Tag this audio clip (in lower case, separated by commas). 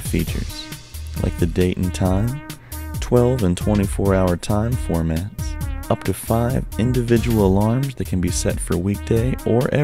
music, speech